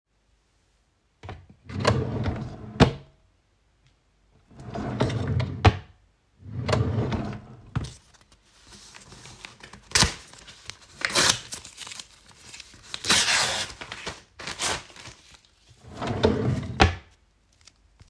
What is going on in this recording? I open and close the drawer continously and towards the end of the recording I tear up a sheet of paper